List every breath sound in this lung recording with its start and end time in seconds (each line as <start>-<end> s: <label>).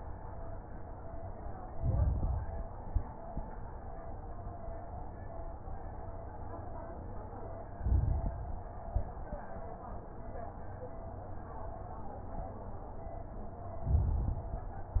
1.63-2.68 s: inhalation
1.63-2.68 s: crackles
2.79-3.15 s: exhalation
2.79-3.15 s: crackles
7.71-8.76 s: inhalation
7.71-8.76 s: crackles
8.84-9.20 s: exhalation
8.84-9.20 s: crackles
13.79-14.84 s: inhalation
13.79-14.84 s: crackles